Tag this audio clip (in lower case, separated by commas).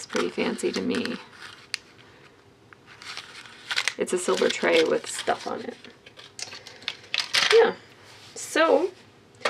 speech, inside a small room